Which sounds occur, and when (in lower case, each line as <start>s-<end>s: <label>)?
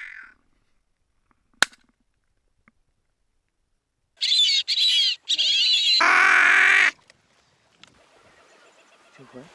0.0s-0.7s: bird call
0.0s-9.5s: wind
1.2s-2.4s: generic impact sounds
1.6s-1.8s: cap gun
2.6s-2.8s: generic impact sounds
3.4s-3.6s: generic impact sounds
4.1s-6.9s: bird call
6.9s-7.1s: generic impact sounds
7.7s-7.9s: generic impact sounds
8.3s-9.5s: bird call
9.1s-9.5s: man speaking